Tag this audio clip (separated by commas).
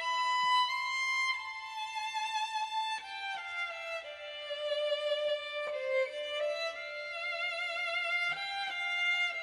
Violin, Music, Musical instrument